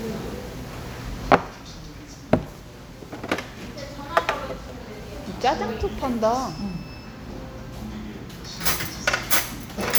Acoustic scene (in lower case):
restaurant